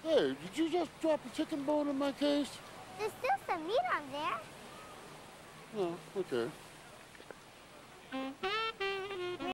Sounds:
music, speech

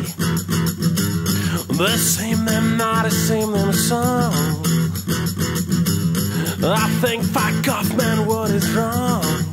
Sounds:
rhythm and blues, music

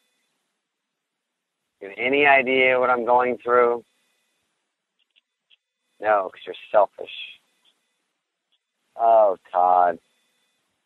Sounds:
speech

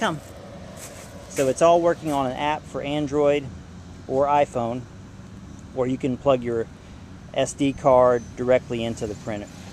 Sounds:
speech

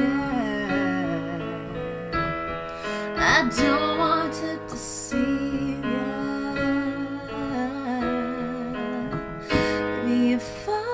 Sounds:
female singing, music

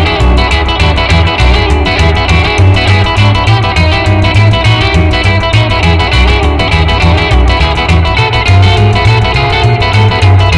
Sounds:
music, guitar, plucked string instrument, acoustic guitar, musical instrument

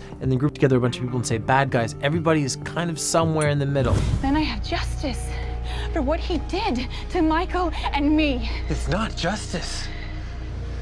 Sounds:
speech, music

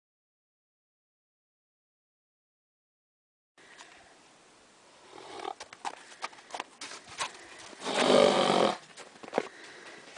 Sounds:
horse neighing

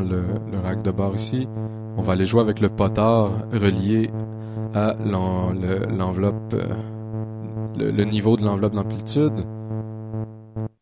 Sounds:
music, electronic music, speech

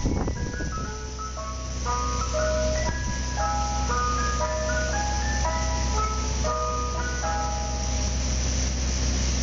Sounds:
music

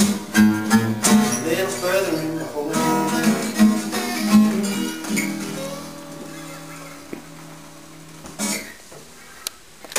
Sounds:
music, plucked string instrument, musical instrument, guitar, acoustic guitar

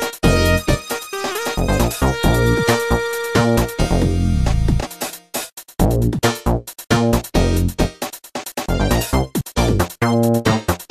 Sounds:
theme music, music

